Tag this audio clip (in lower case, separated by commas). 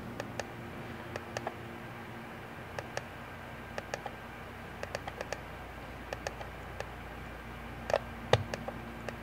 mouse